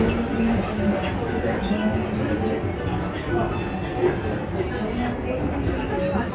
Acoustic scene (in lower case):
crowded indoor space